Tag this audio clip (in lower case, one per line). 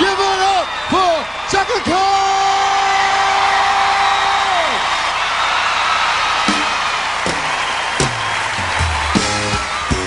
music
speech